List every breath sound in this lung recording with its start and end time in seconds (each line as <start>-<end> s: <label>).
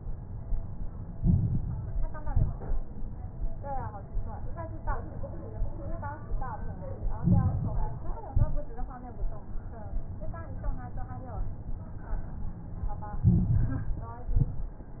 1.04-2.11 s: inhalation
1.04-2.11 s: crackles
2.13-2.92 s: exhalation
2.13-2.92 s: crackles
7.05-8.11 s: inhalation
7.05-8.11 s: crackles
8.23-9.02 s: exhalation
8.23-9.02 s: crackles
13.19-14.25 s: inhalation
13.19-14.25 s: crackles
14.25-15.00 s: exhalation
14.25-15.00 s: crackles